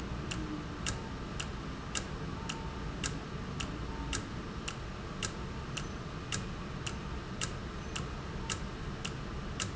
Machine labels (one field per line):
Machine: valve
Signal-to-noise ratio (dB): -6 dB